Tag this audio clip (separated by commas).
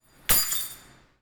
Keys jangling, Domestic sounds